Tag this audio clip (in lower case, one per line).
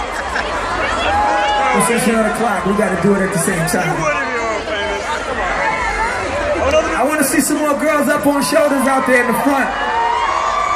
speech